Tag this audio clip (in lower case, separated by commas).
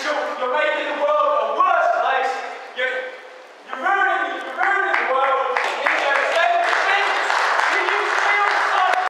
monologue, speech, male speech